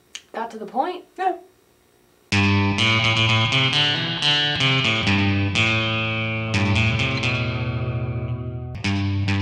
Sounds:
effects unit

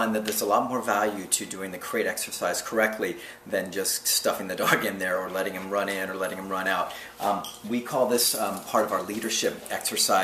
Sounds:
inside a small room, speech

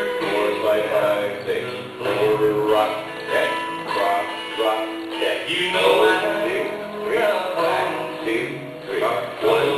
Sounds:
music, dance music

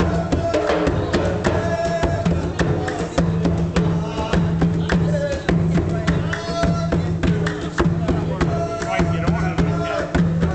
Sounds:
folk music, music, middle eastern music

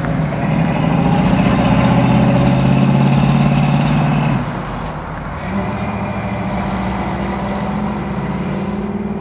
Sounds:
car, outside, urban or man-made, vehicle

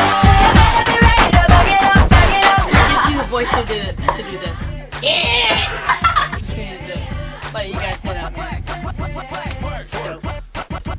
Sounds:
snicker, music, pop music, singing, speech, people sniggering

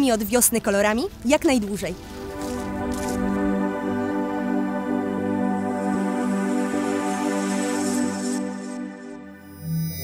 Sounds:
speech, music

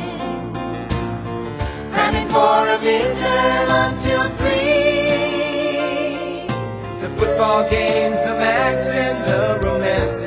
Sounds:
music

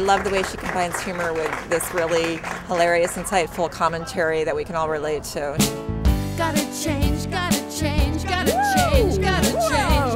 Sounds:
speech, happy music, pop music, singing, music

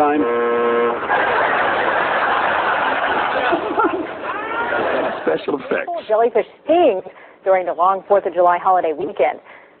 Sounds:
car horn, speech

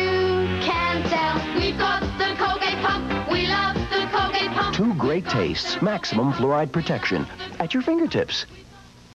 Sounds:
music, speech

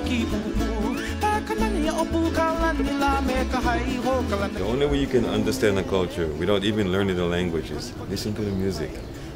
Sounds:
music, speech

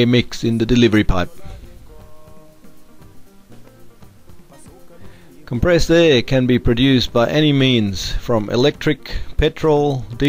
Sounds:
speech

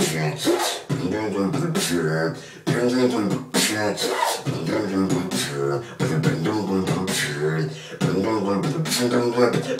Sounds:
dubstep, music

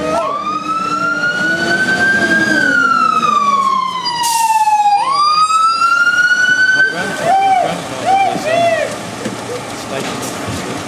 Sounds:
emergency vehicle, speech, vehicle, fire engine

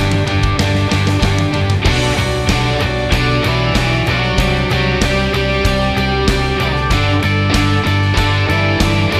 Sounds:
music

